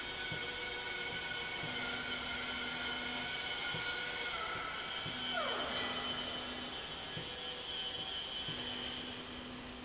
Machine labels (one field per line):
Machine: slide rail